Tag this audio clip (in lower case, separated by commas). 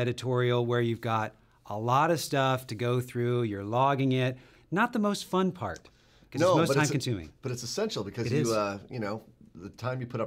speech